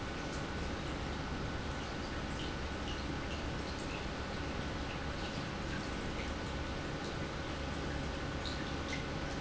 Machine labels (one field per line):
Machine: pump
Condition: normal